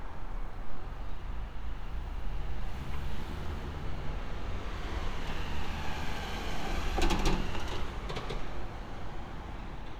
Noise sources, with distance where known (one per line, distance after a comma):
large-sounding engine, near